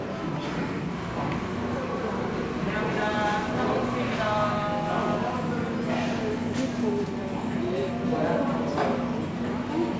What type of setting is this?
cafe